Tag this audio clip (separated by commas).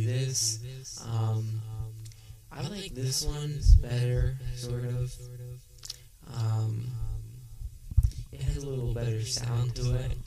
Speech